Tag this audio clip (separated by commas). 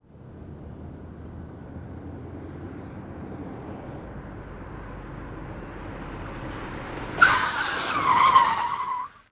Vehicle, Car, Motor vehicle (road)